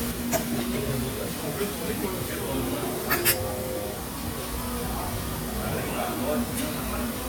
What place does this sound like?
restaurant